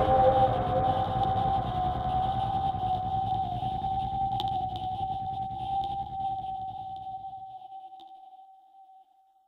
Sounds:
Music

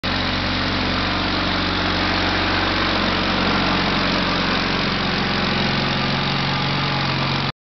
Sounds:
Vehicle, Lawn mower

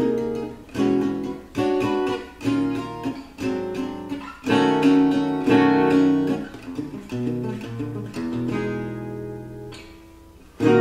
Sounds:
Musical instrument, Acoustic guitar, Plucked string instrument, Guitar, Music

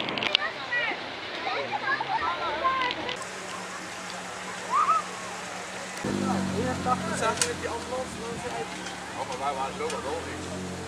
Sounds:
Vehicle, Speech, Motor vehicle (road)

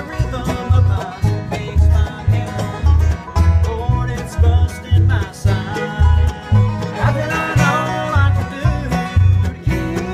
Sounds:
Music, Banjo, Mandolin, playing banjo, Musical instrument

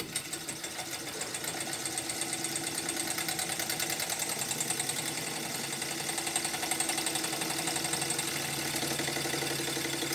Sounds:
Engine

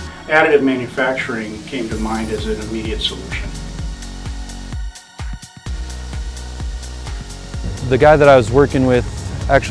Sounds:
Music, Speech

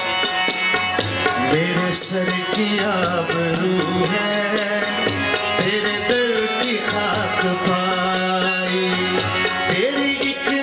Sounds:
Middle Eastern music, Music

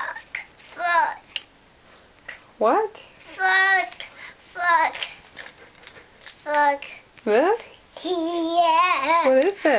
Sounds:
Chuckle, Child speech

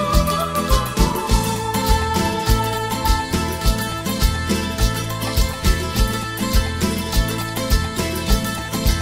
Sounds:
Music, Rhythm and blues, Soundtrack music

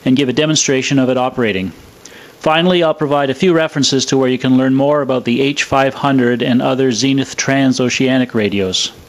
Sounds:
Radio, Speech

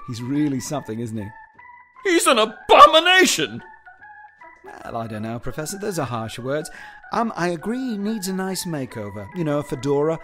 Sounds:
Speech, Music

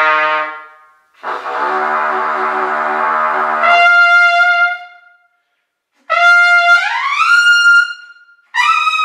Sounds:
Musical instrument, playing trumpet, Trumpet, Brass instrument, Music

